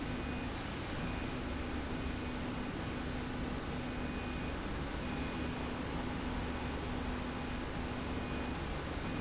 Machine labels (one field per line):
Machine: slide rail